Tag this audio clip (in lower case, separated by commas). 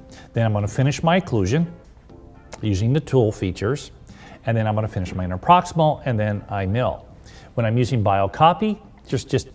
music, speech